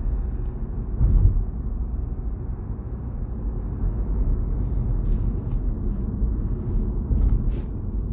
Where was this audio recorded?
in a car